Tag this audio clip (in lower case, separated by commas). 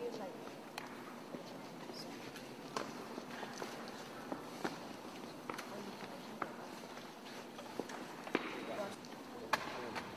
speech